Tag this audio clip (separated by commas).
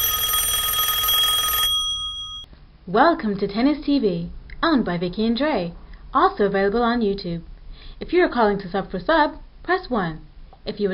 Speech